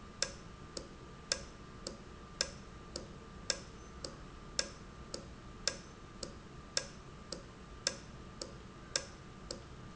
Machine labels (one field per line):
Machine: valve